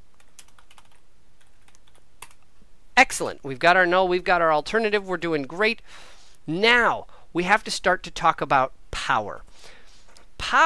Typing on a keyboard with a man speaking